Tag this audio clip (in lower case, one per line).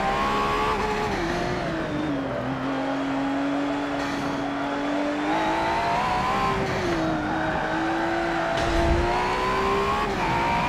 skidding